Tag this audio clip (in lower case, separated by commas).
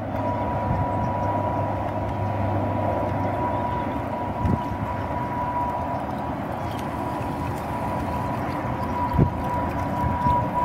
vehicle, boat